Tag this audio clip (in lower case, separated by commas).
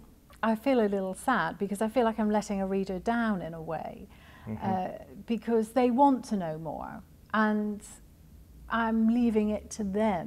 inside a small room, speech